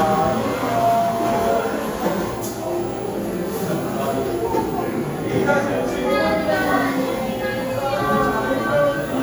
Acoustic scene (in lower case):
cafe